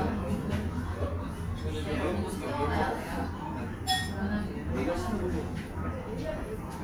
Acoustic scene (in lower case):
restaurant